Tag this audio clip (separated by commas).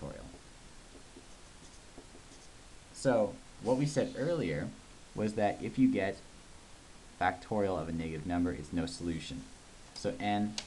Speech